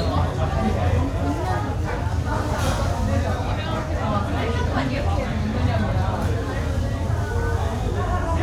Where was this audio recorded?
in a restaurant